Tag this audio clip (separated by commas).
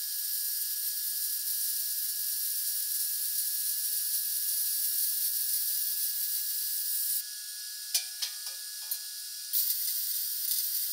inside a large room or hall